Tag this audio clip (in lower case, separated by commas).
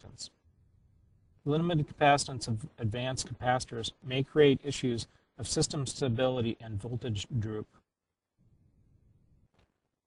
speech